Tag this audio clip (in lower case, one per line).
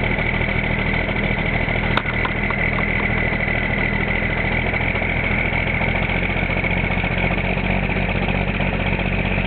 idling
vehicle